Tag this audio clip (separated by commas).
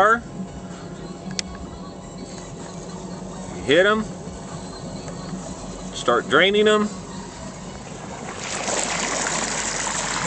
Water, Music, Speech